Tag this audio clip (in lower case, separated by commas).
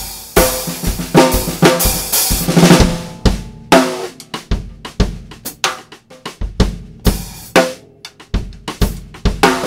drum, cymbal, snare drum, music, drum kit